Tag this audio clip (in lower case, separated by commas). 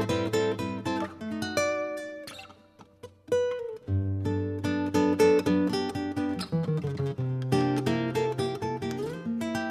guitar, strum, acoustic guitar, music, plucked string instrument, musical instrument